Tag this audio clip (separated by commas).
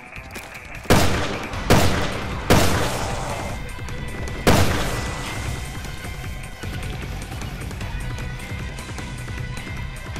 Music